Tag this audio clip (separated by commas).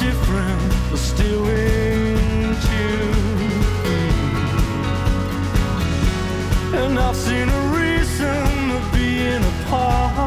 Musical instrument, Music, Sound effect